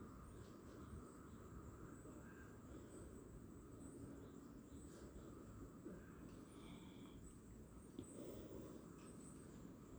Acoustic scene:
park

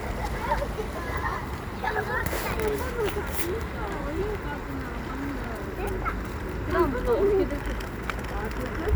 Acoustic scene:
residential area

